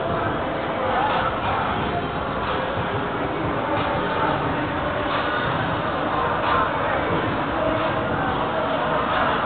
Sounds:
speech
music

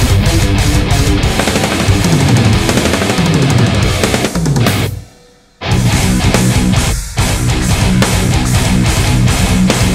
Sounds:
music
guitar
plucked string instrument
musical instrument
electric guitar

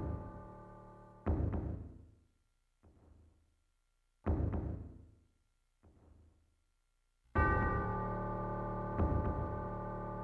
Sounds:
music
scary music

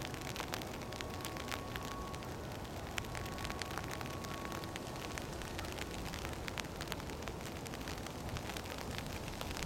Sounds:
rain on surface

